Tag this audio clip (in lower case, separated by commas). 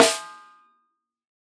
musical instrument, snare drum, percussion, drum, music